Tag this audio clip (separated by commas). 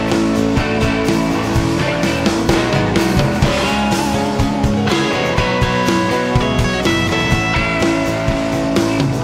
playing guiro